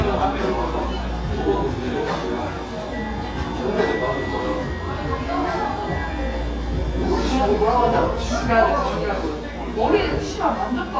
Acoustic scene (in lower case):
cafe